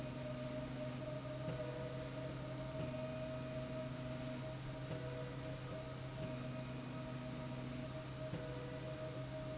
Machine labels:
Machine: slide rail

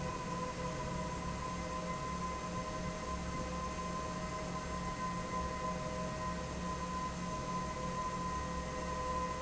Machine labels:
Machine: fan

